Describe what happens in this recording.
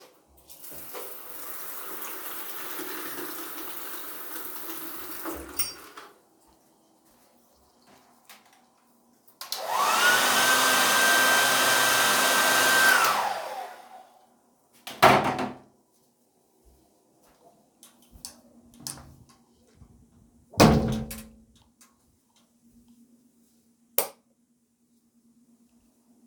I was in the shower, got out turned the hair dryer on to dry my hair, walked out of the bathroom, closed the door and turned on the hallway light.